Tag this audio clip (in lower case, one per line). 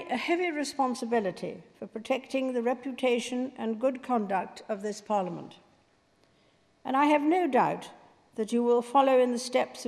speech
female speech